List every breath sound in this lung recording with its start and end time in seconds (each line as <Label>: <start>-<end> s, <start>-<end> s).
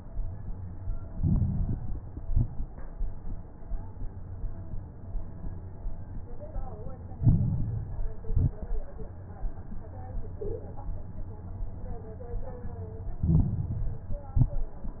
Inhalation: 1.00-2.01 s, 7.12-8.13 s, 13.22-14.23 s
Exhalation: 2.05-2.69 s, 8.25-8.89 s, 14.27-14.91 s
Crackles: 1.00-2.01 s, 2.05-2.69 s, 7.12-8.13 s, 8.25-8.89 s, 13.22-14.23 s, 14.27-14.91 s